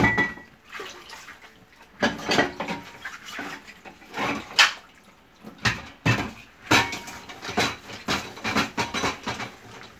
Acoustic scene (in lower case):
kitchen